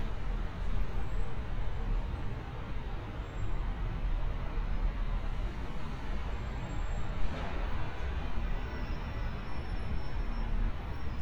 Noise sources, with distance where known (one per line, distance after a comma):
engine of unclear size